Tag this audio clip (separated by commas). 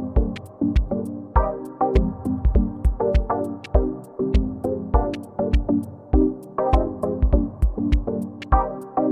Music